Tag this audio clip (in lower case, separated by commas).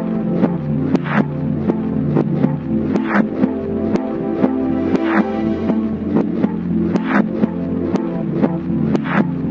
synthesizer, music